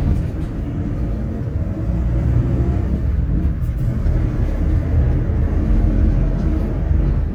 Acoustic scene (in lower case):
bus